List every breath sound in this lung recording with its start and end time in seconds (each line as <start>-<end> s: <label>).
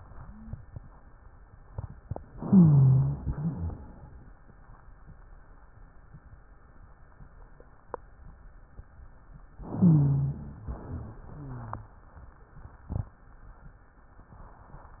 2.33-3.21 s: inhalation
2.33-3.21 s: rhonchi
3.25-3.99 s: rhonchi
3.25-4.20 s: exhalation
9.71-10.66 s: inhalation
9.71-10.66 s: rhonchi
10.70-11.99 s: exhalation
10.70-11.99 s: rhonchi